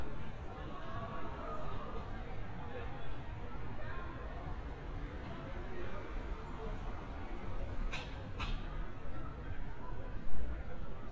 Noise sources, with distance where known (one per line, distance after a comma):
person or small group talking, far
person or small group shouting